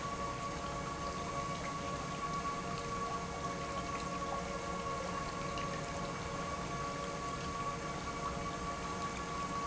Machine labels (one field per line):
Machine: pump